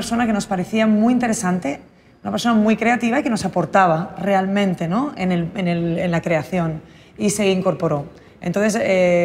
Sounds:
speech

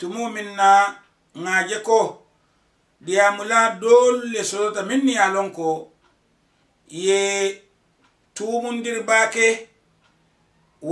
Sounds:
speech

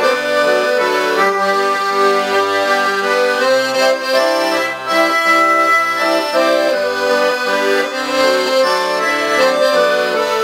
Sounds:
playing accordion, accordion, music

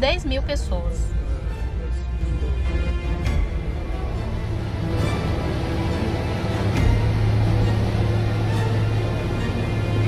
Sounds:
volcano explosion

